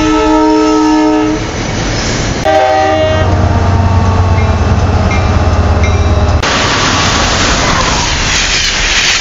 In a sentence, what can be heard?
A train horn rings as a train goes by